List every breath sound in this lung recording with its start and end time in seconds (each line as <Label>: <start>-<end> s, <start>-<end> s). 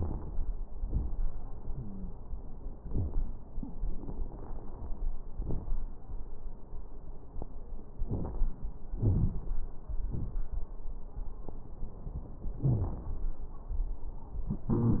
Inhalation: 8.01-8.50 s
Exhalation: 8.98-9.46 s
Wheeze: 1.65-2.14 s, 12.64-12.99 s, 14.65-15.00 s
Crackles: 8.01-8.50 s, 8.98-9.46 s